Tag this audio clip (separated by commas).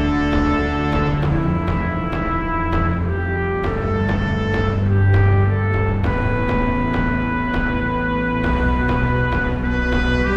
Theme music